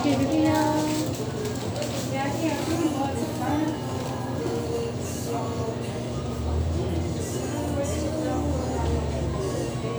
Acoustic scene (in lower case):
restaurant